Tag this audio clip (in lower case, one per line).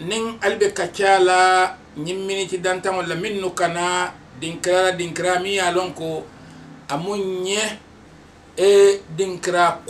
speech